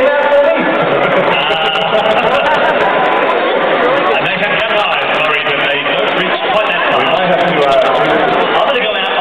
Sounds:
Speech

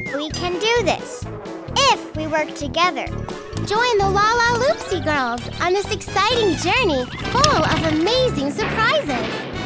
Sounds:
kid speaking, Music, Music for children

